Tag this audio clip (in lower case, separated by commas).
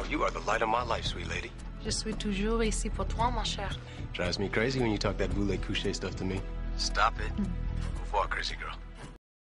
music, speech